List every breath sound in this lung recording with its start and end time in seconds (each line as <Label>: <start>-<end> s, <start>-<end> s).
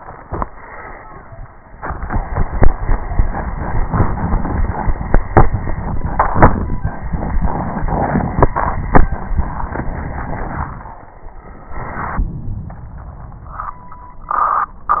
Inhalation: 11.44-13.76 s